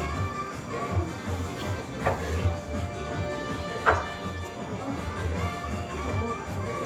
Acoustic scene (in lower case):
restaurant